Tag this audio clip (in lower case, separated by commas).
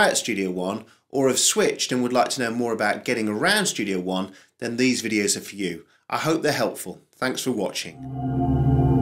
music, speech